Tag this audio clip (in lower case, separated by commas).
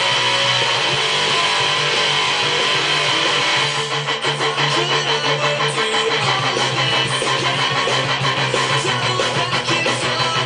plucked string instrument, musical instrument, music, guitar, electric guitar, strum, bass guitar